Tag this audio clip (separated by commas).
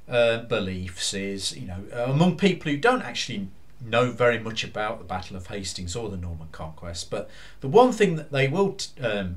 Speech